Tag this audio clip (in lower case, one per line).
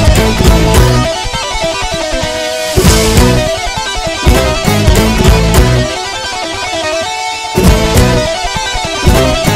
tapping guitar